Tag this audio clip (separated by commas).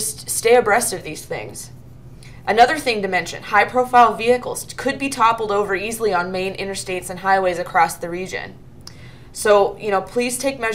Speech